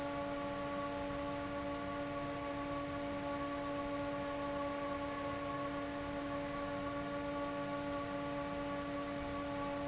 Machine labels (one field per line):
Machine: fan